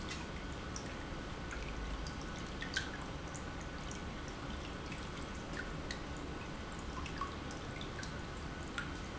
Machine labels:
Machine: pump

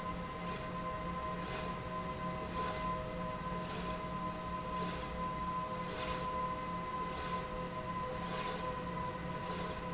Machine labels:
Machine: slide rail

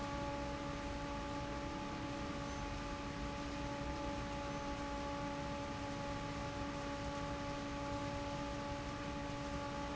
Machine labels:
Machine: fan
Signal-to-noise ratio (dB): 0 dB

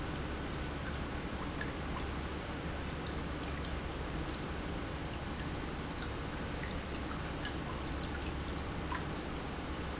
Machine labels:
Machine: pump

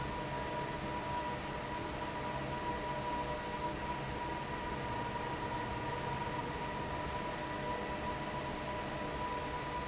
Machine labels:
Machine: fan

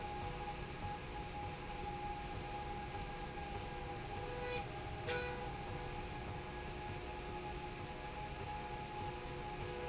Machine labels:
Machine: slide rail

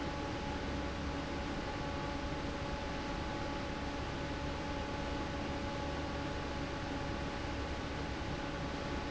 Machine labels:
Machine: fan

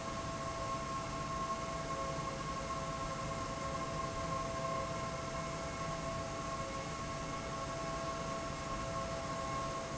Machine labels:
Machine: fan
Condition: abnormal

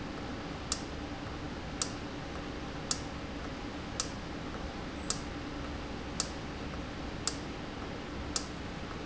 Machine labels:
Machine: valve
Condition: normal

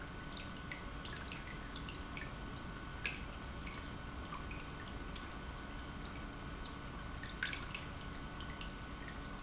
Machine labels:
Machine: pump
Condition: normal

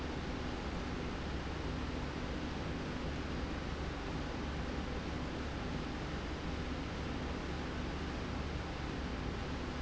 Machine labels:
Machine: slide rail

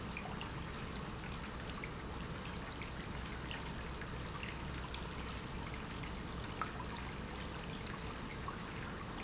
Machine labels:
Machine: pump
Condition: normal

